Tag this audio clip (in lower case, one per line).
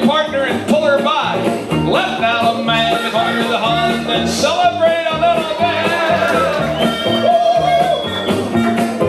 crowd